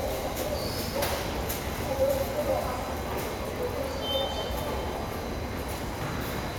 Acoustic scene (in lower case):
subway station